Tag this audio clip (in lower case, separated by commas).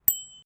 vehicle, bicycle bell, bell, bicycle, alarm